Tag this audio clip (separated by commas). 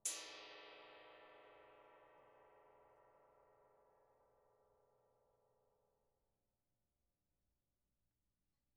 Music, Gong, Musical instrument, Percussion